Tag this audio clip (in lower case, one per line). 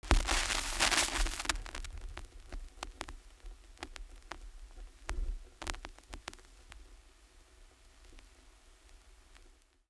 crackle